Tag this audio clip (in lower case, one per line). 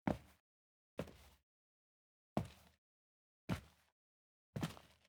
walk